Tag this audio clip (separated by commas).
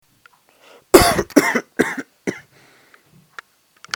Respiratory sounds, Cough